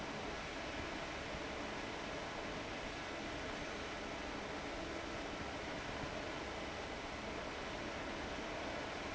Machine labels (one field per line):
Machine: fan